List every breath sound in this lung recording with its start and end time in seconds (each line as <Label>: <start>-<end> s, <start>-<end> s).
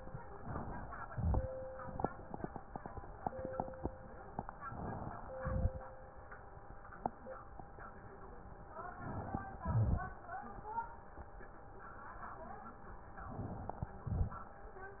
Inhalation: 0.30-1.10 s, 4.57-5.25 s, 8.70-9.58 s, 13.09-14.06 s
Exhalation: 1.07-1.87 s, 5.22-6.09 s, 9.57-10.46 s, 14.03-14.89 s
Crackles: 1.07-1.87 s, 5.22-6.09 s, 9.57-10.46 s